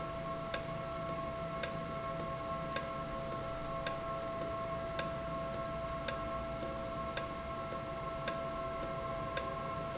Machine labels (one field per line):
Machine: valve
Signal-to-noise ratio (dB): -6 dB